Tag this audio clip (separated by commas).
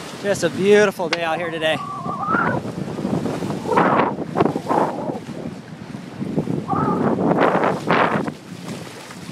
sailing ship, Speech